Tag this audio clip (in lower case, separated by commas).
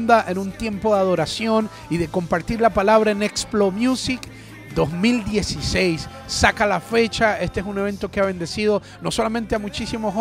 speech, music